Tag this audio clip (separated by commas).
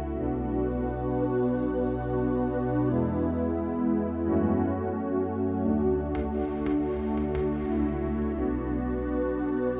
New-age music, Music